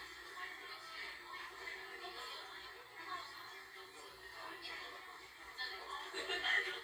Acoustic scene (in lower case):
crowded indoor space